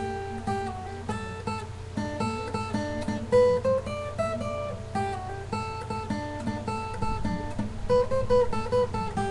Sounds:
plucked string instrument, strum, music, guitar, acoustic guitar, musical instrument

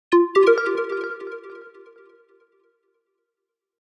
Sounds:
sound effect, music

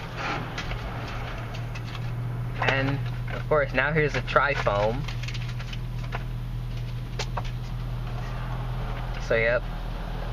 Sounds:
speech, inside a large room or hall, vehicle

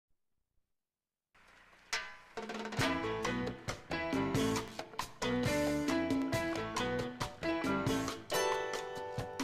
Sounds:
music

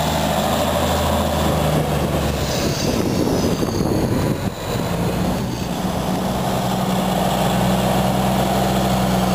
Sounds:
truck, vehicle

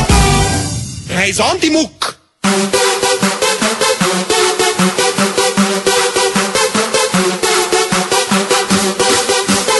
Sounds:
music, techno, speech, electronic music

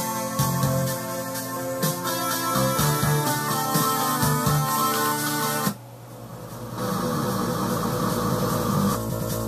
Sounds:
outside, rural or natural, music

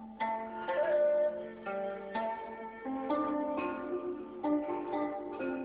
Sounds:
music

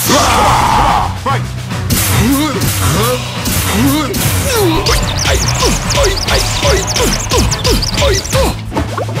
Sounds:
speech, music

